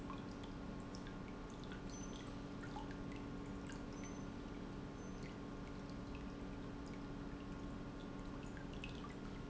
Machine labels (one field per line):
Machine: pump